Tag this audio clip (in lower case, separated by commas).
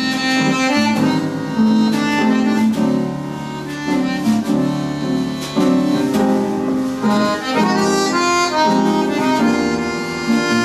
accordion